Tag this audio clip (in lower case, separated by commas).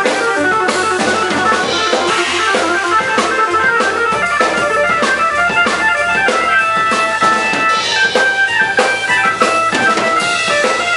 music